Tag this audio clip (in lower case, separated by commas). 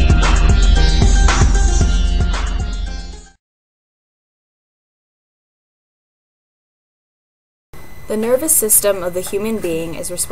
music, speech, silence